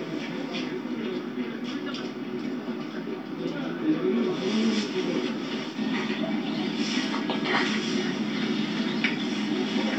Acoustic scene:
park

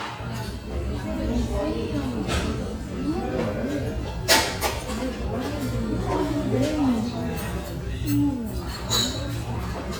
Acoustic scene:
restaurant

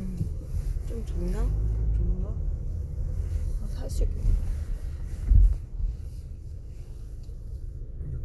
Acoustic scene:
car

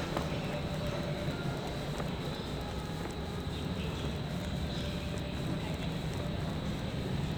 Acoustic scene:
subway station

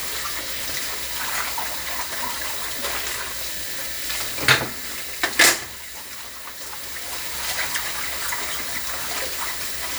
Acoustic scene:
kitchen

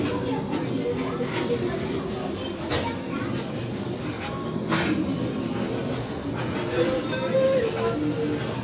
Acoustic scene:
crowded indoor space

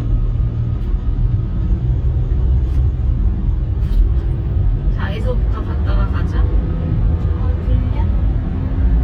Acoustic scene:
car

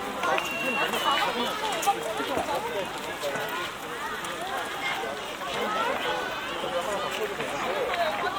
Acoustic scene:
park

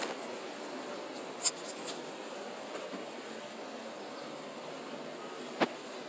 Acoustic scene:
residential area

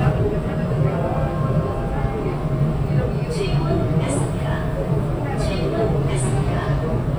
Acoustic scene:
subway train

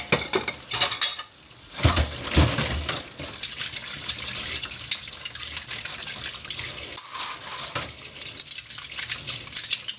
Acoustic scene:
kitchen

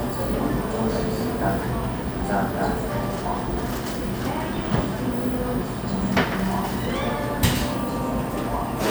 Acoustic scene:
cafe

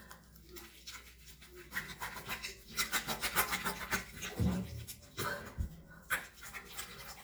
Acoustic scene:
restroom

